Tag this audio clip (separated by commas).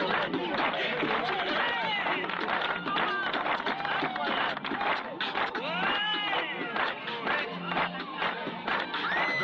Speech